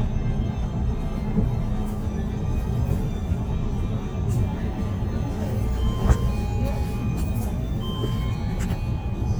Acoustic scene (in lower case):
bus